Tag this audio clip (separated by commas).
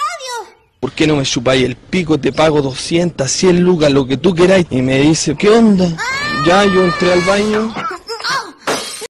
Speech